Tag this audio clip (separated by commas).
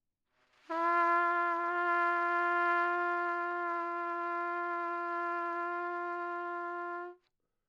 Brass instrument, Trumpet, Musical instrument, Music